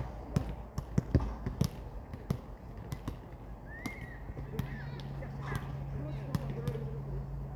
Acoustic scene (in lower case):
park